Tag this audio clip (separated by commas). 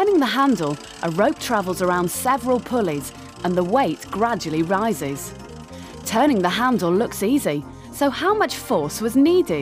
Ratchet, Gears, Mechanisms, Pulleys